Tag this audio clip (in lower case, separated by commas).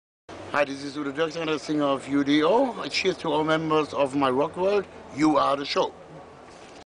speech